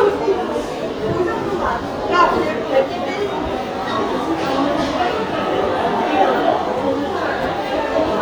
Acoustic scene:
subway station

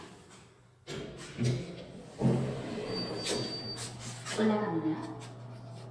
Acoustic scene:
elevator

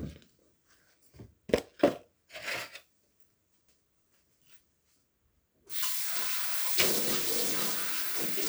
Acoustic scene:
kitchen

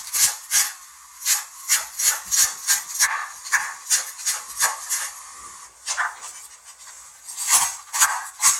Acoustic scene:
kitchen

